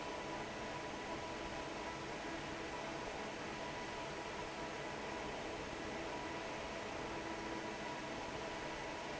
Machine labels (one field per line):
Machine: fan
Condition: normal